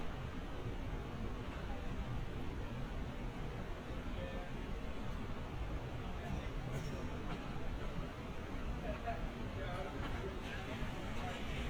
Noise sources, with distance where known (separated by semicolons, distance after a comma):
person or small group talking, far